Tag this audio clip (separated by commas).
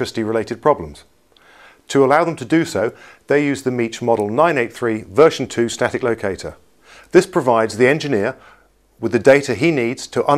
Speech